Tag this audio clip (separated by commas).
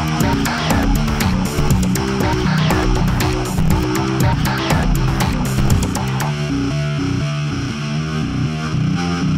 Sound effect, Music